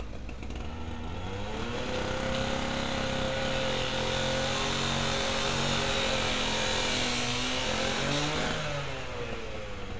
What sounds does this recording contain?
unidentified powered saw